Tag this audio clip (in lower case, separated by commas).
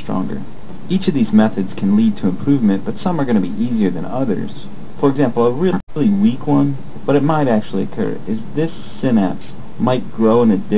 speech